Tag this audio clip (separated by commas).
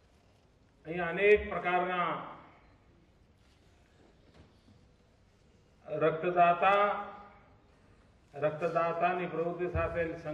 Speech, monologue, Male speech